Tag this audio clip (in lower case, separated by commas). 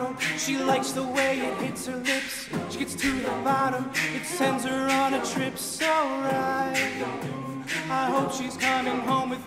music